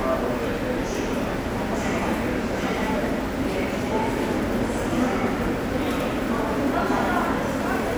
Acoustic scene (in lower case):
subway station